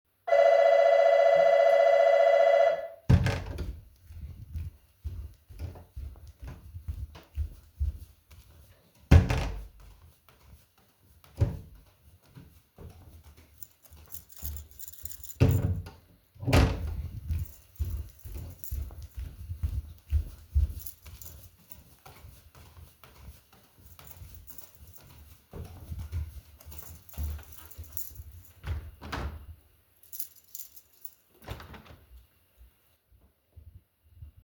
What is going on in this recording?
The bell rang and i grabbed my keys and opened my door, went into the living_room and opened another door.